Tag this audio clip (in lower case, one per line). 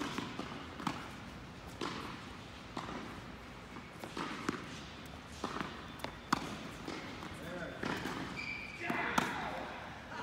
playing tennis